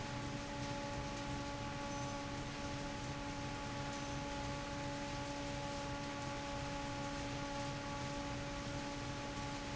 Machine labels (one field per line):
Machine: fan